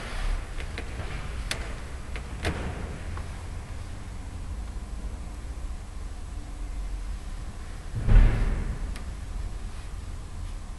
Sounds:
tap

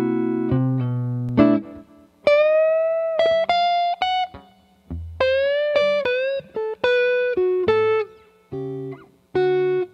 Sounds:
music
distortion

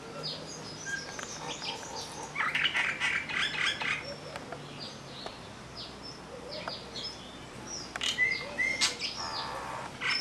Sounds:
mynah bird singing

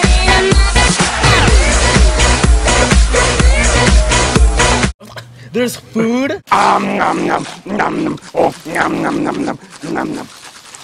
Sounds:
outside, urban or man-made
speech
music

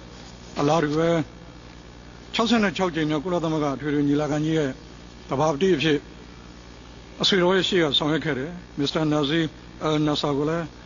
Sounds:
monologue
speech

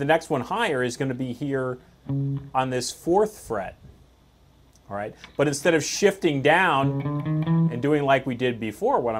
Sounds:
music
speech
musical instrument
electric guitar

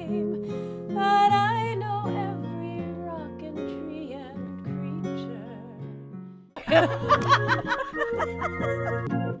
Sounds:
music

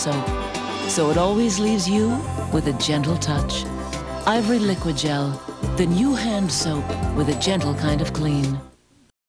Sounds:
music
speech

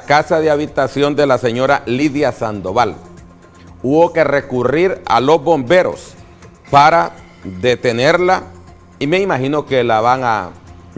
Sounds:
speech
music
inside a small room

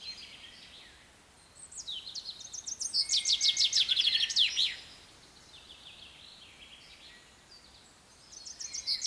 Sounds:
mynah bird singing

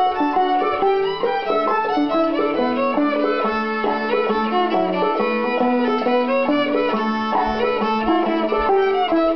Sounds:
music
violin
pizzicato
musical instrument

